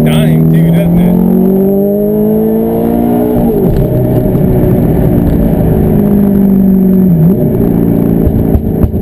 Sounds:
Speech

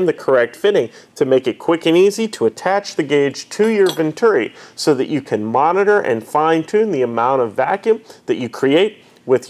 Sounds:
Speech

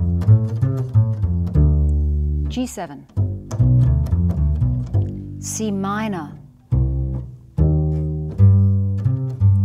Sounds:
playing double bass

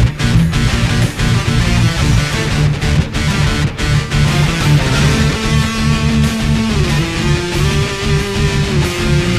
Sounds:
Guitar, Electric guitar, Strum, Plucked string instrument, Music, Musical instrument

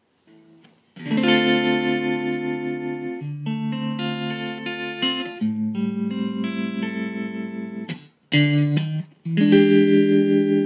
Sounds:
Guitar, Music, Effects unit, inside a small room

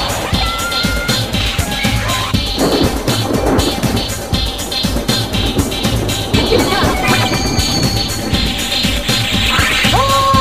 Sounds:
Techno, Electronic music, Music

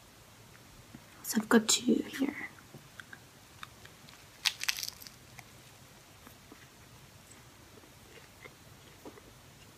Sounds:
inside a small room, Biting, people eating, Speech

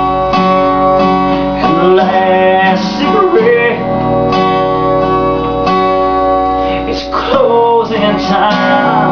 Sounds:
Music

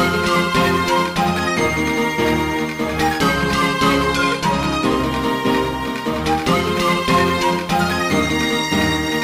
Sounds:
Music

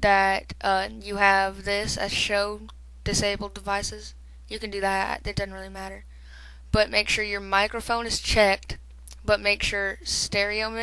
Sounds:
Speech

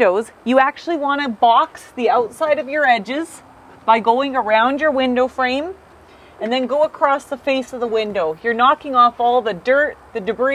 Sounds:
Speech

